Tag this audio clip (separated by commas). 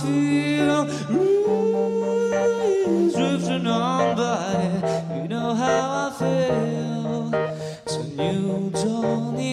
Music